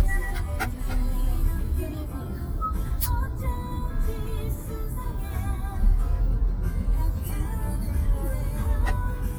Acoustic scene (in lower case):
car